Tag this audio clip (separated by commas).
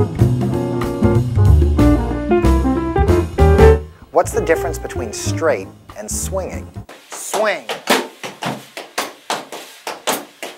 Music, Speech